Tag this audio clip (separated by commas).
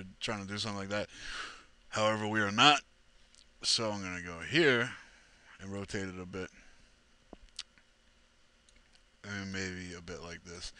Speech